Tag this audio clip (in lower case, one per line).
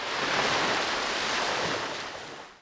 water
ocean